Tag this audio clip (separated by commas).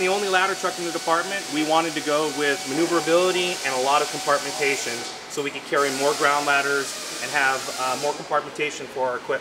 Speech